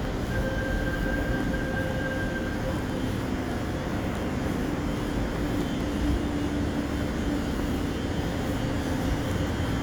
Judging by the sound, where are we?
in a subway station